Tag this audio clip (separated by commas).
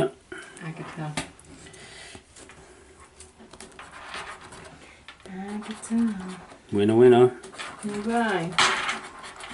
Speech